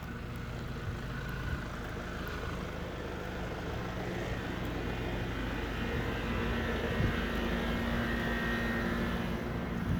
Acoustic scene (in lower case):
residential area